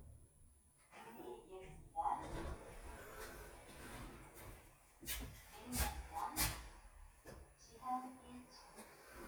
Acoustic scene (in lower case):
elevator